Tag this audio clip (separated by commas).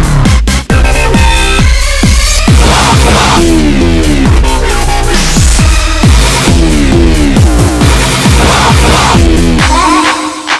Music, Electronic music, Dubstep